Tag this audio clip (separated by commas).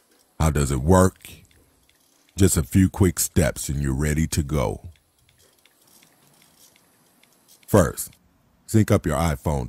Speech